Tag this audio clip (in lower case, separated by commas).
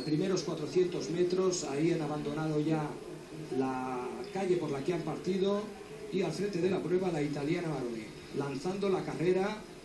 speech